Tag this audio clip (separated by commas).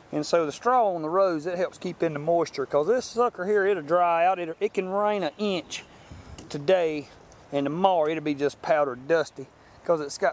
Speech